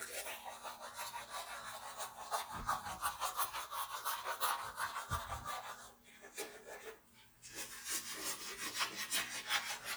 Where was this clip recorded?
in a restroom